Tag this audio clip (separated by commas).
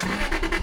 Engine, Car, Vehicle, Motor vehicle (road)